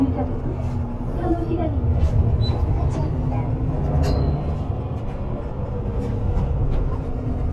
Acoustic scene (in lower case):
bus